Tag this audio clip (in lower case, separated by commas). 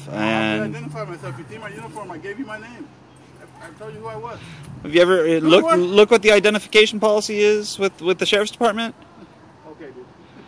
speech